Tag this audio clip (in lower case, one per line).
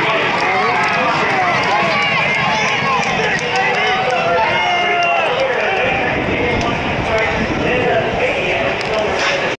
clip-clop
speech